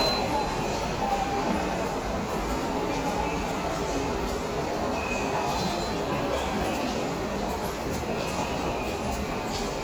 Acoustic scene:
subway station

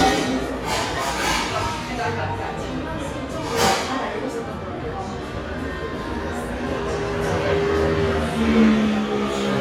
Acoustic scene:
cafe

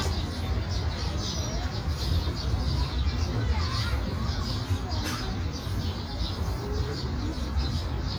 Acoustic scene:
park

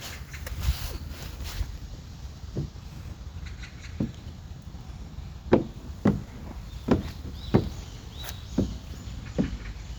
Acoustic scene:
park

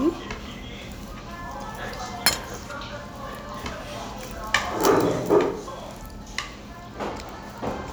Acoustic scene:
restaurant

